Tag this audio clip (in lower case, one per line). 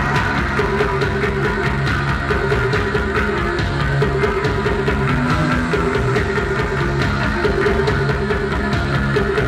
music